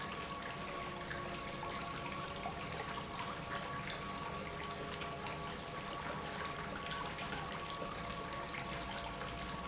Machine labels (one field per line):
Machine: pump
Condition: normal